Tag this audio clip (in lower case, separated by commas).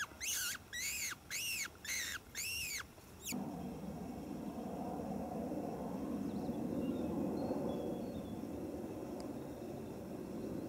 wild animals, animal